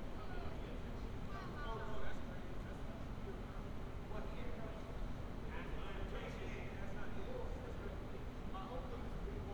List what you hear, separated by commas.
person or small group talking